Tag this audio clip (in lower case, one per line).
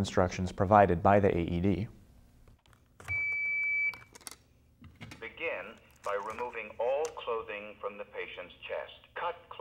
speech
inside a large room or hall
bleep